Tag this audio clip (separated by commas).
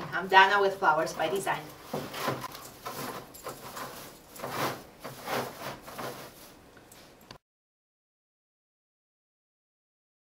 Speech